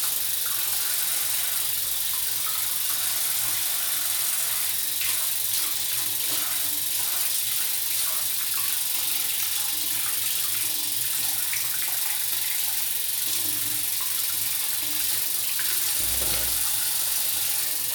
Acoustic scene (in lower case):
restroom